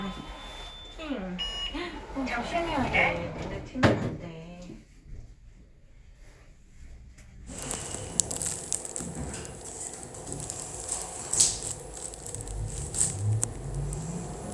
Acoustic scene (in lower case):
elevator